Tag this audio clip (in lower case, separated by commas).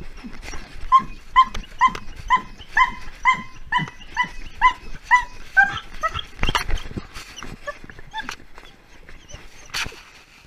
dog, animal